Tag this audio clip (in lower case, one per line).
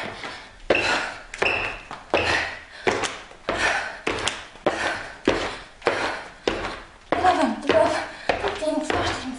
speech
inside a small room